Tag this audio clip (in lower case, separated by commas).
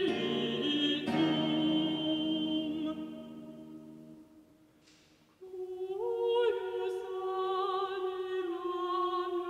classical music, music, opera, singing